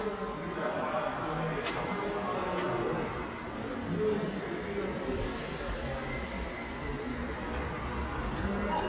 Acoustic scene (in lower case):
subway station